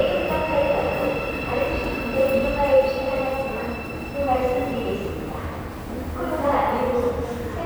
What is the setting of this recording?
subway station